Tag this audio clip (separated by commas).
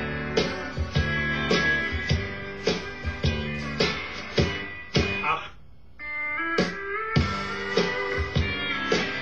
Music, slide guitar, Guitar, Plucked string instrument, Musical instrument